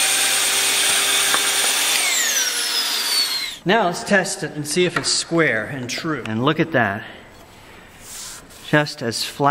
Power saw and man speaking